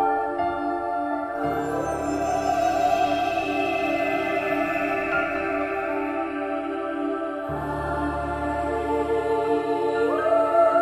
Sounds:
Music

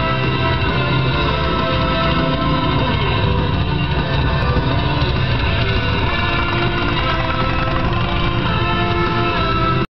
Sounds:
Vehicle, Music

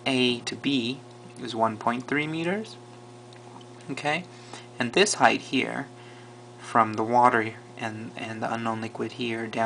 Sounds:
Speech

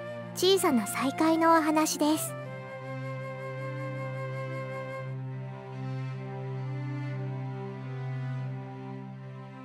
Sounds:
Music, Speech

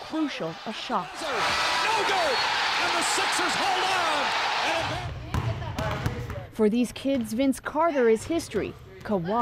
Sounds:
basketball bounce

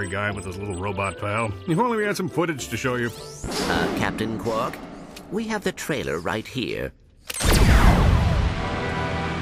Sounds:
Speech, Music

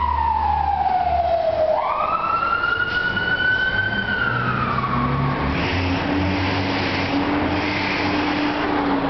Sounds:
Vehicle, outside, urban or man-made, fire truck (siren), Emergency vehicle

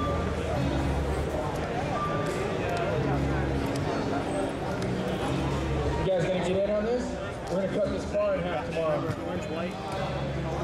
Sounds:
Speech, Music

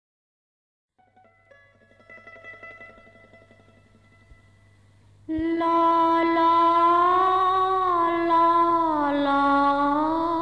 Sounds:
Music

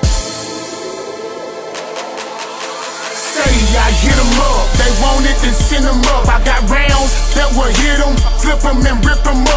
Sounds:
Music

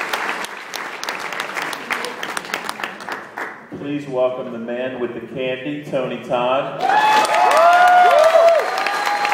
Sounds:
Speech

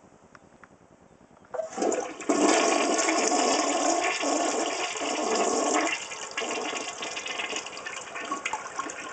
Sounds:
Water, Toilet flush, toilet flushing

